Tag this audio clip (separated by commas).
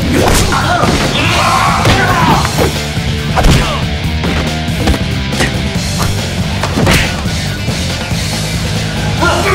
Music